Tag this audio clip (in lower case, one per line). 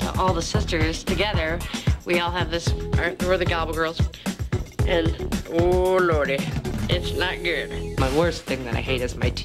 speech
music